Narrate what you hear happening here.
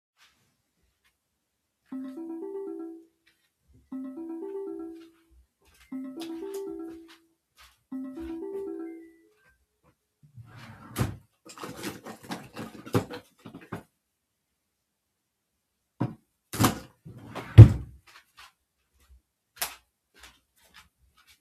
I heard a laptop and phone ring, entered the bedroom. I opened a drawer to take power bank, then turned off the light and left the room.